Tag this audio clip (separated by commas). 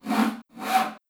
Sawing, Tools